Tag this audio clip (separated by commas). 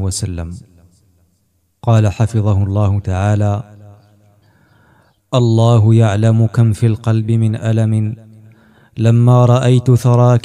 Speech